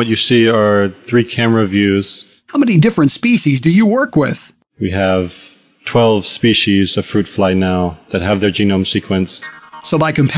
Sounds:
speech synthesizer, music, speech

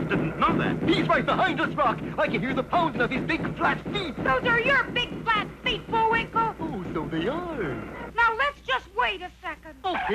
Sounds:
speech, outside, rural or natural

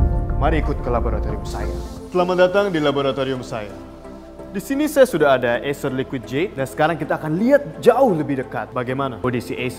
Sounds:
speech, music

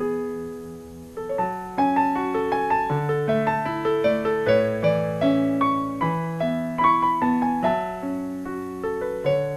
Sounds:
music

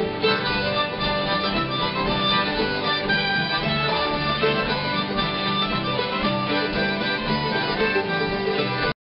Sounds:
music

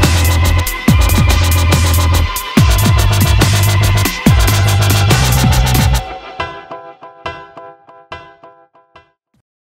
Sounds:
drum and bass, music

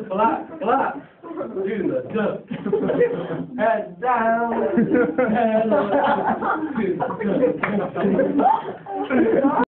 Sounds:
speech

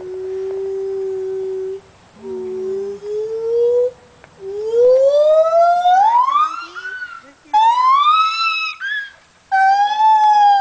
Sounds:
speech

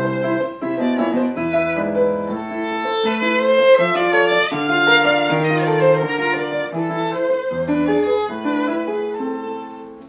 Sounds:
music, musical instrument, violin

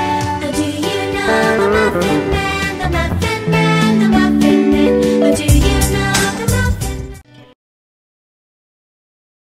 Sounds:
musical instrument, guitar, music

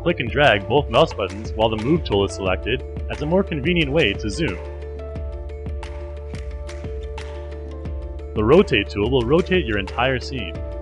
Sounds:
music, speech

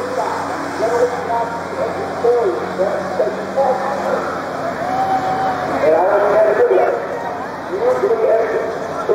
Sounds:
speech

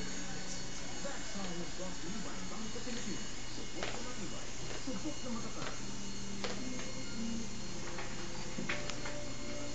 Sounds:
speech, music

